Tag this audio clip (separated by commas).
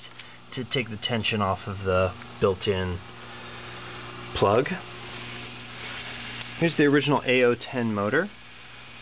Speech